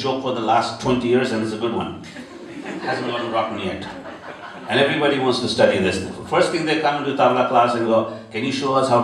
A man speeches and several people laugh